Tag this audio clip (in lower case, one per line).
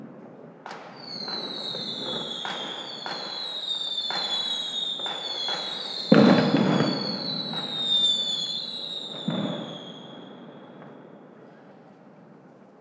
fireworks
explosion